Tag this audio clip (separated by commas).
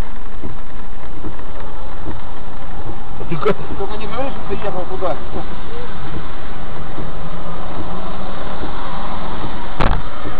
Speech, Car, Vehicle